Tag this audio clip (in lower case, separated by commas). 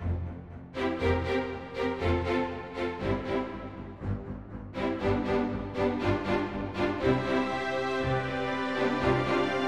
music